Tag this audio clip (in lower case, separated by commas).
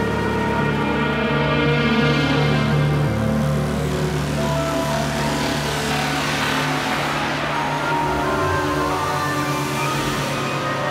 ambient music, electric guitar, music, electronic music, musical instrument, guitar